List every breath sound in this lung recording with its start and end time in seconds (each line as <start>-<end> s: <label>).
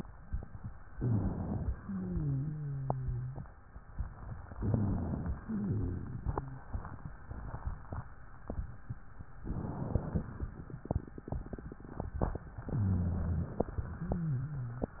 0.93-1.71 s: inhalation
1.73-3.46 s: wheeze
4.54-5.41 s: inhalation
4.54-5.41 s: rhonchi
5.43-6.66 s: exhalation
5.43-6.66 s: wheeze
9.41-10.48 s: inhalation
12.75-13.62 s: inhalation
12.75-13.62 s: rhonchi
13.93-15.00 s: exhalation
13.93-15.00 s: wheeze